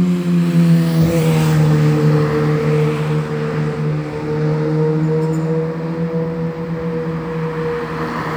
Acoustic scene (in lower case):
street